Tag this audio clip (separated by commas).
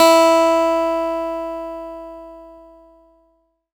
Music, Guitar, Acoustic guitar, Plucked string instrument, Musical instrument